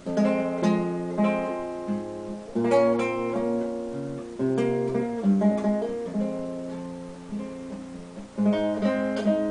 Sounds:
Acoustic guitar, Plucked string instrument, Musical instrument, Strum, Music, Guitar

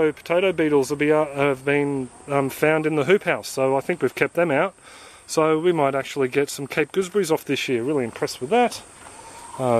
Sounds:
Speech, outside, rural or natural

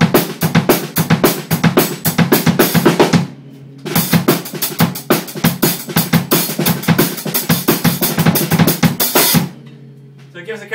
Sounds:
playing snare drum

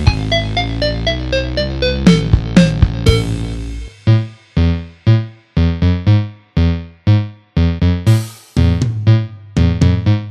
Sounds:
Plucked string instrument, Music, Musical instrument, Electric guitar

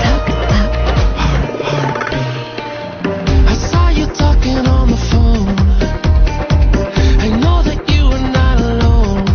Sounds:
Music

